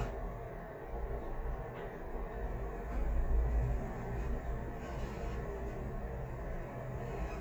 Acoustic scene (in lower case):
elevator